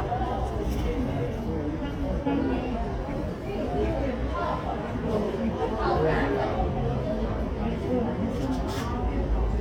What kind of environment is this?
subway station